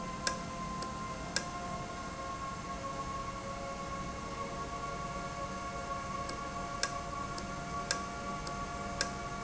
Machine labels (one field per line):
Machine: valve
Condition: normal